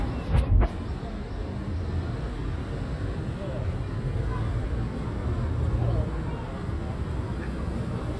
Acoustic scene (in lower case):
residential area